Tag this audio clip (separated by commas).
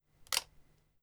Camera, Mechanisms